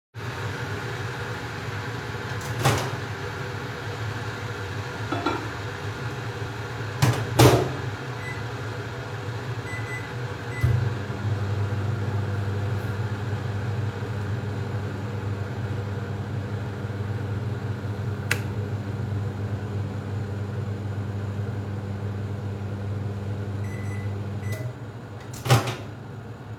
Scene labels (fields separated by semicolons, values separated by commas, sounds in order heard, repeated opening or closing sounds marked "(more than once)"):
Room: kitchen; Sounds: microwave, cutlery and dishes